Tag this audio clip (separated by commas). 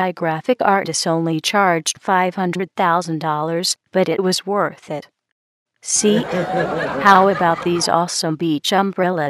Speech synthesizer